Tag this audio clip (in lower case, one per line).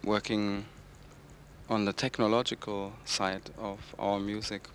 human voice